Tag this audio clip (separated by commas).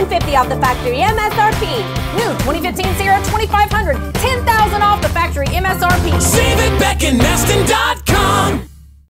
Music, Speech